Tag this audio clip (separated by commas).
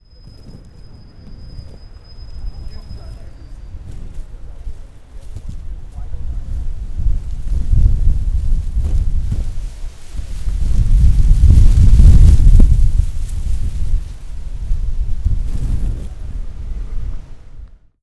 Wind